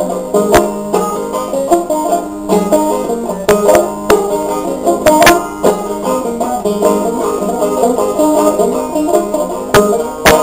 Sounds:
plucked string instrument
music
banjo
musical instrument
playing banjo

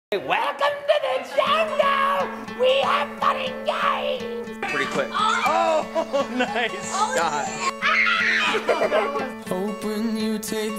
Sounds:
child speech

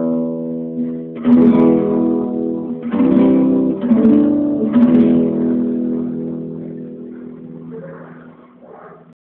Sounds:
acoustic guitar
musical instrument
guitar
music

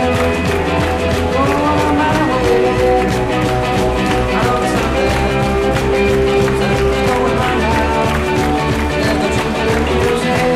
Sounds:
music

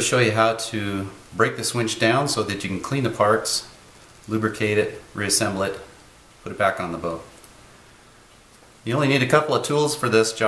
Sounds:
speech

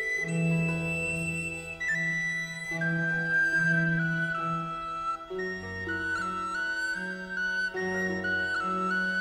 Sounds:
music

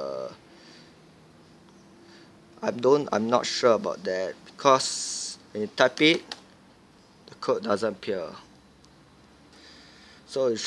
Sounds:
speech

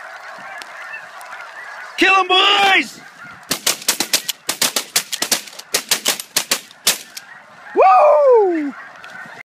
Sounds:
fowl
goose
honk

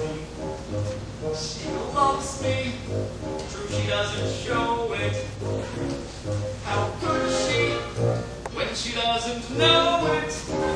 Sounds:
music
male singing

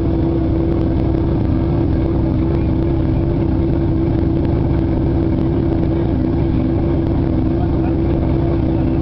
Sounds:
speech

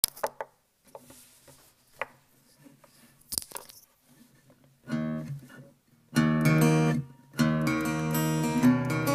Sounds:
plucked string instrument
guitar
music
musical instrument
acoustic guitar
inside a small room

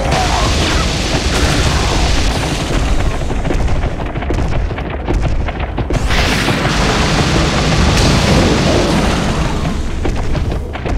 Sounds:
gunshot

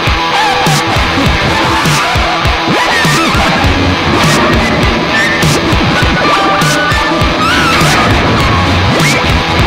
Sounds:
music

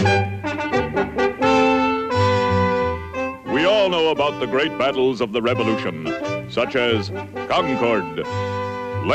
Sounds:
speech
musical instrument
music

